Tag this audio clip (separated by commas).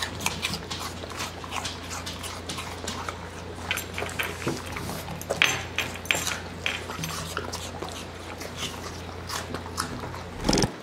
people eating apple